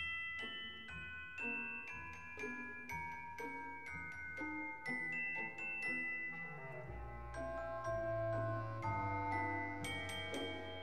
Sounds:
glockenspiel, mallet percussion, marimba

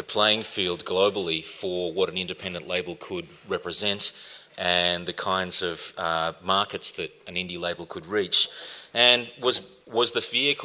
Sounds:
speech

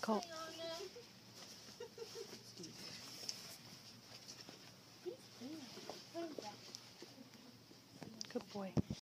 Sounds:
speech

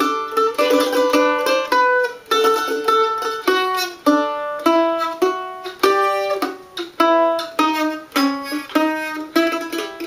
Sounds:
music, traditional music

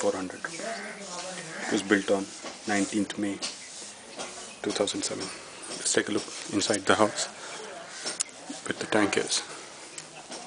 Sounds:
speech

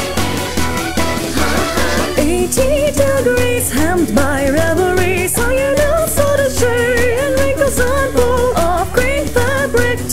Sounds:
music

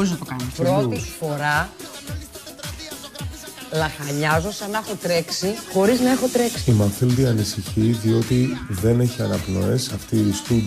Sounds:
speech, music, music of asia

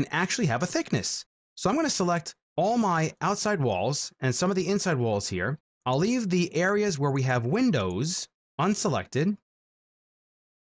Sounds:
speech

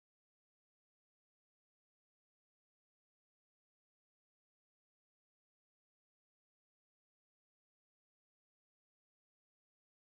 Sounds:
swimming

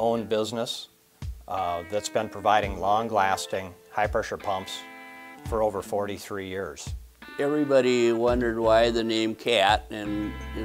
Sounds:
speech, music

